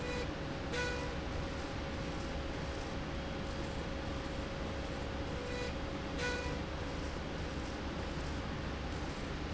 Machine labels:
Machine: slide rail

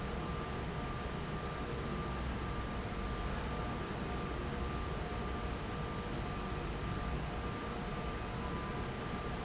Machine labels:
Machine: fan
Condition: abnormal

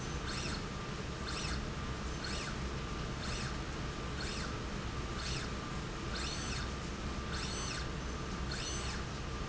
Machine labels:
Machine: slide rail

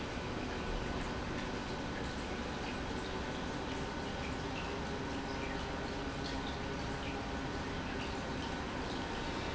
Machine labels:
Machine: pump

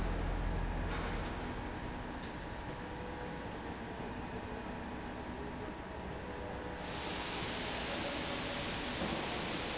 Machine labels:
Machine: slide rail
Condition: normal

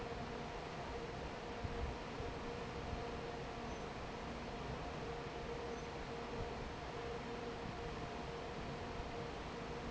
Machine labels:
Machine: fan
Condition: normal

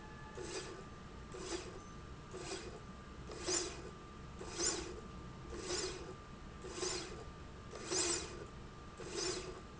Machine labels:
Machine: slide rail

